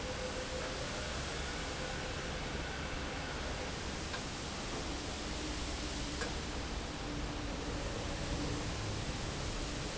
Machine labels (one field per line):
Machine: fan